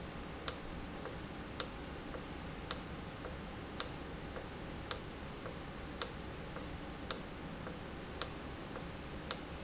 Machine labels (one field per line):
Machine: valve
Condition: normal